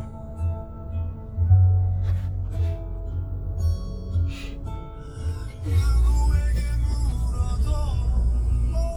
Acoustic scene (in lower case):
car